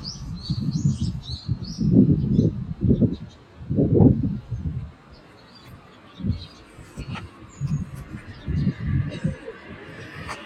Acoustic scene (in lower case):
street